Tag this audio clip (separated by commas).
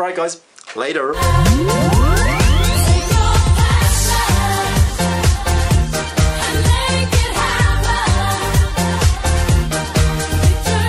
Music, Speech, Pop music